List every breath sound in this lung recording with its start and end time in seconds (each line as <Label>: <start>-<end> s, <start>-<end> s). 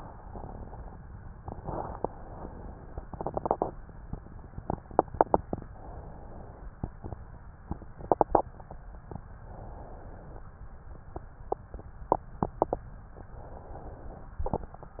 Inhalation: 2.04-3.01 s, 5.69-6.68 s, 9.47-10.46 s, 13.20-14.36 s